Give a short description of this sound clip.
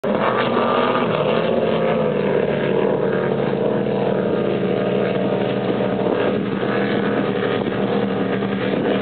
A speedboat on water